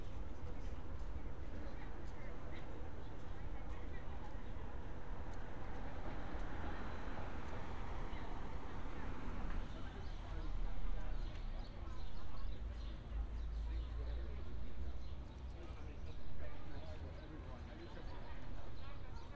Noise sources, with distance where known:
person or small group talking

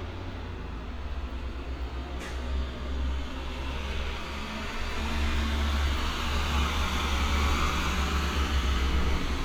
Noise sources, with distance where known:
large-sounding engine, near

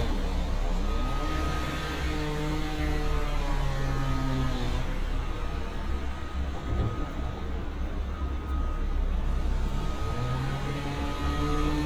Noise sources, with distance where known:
unidentified powered saw, near; reverse beeper

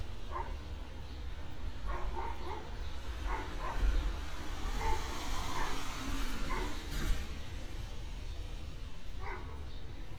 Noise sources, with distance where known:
medium-sounding engine, near; dog barking or whining, near

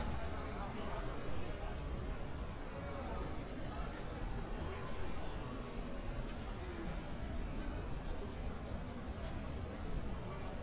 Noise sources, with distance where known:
person or small group talking

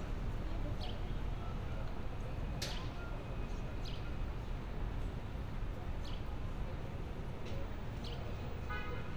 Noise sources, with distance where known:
car horn

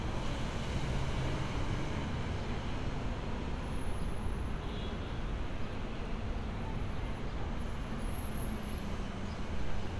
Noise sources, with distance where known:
engine of unclear size

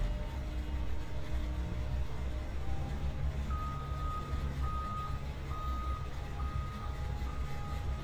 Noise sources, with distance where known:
reverse beeper, near

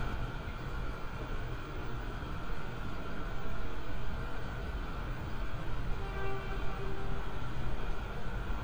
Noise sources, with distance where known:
car horn, far

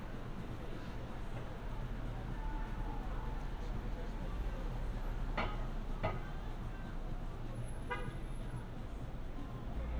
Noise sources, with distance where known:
car horn, near; person or small group talking

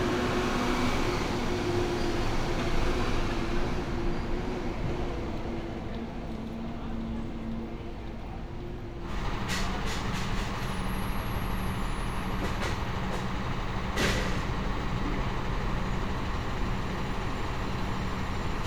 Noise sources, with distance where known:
large-sounding engine, near

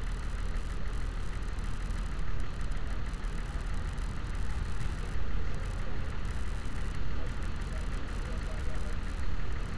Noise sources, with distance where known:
large-sounding engine

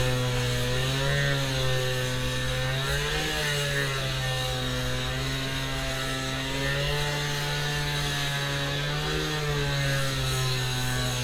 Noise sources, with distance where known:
chainsaw, near

